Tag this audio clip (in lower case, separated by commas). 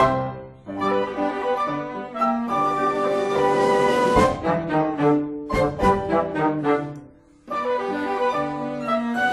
music